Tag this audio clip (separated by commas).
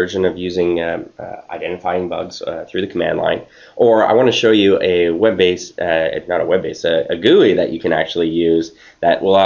Speech